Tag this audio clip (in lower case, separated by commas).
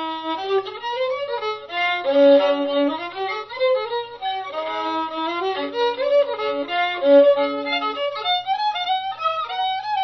music